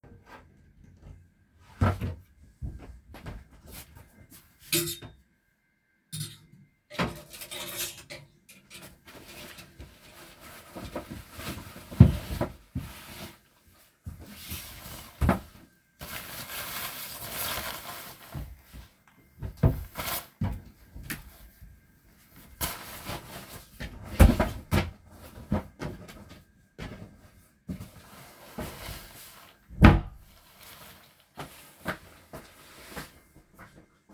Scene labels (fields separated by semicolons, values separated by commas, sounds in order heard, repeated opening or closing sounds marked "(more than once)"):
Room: bedroom; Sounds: wardrobe or drawer (more than once), footsteps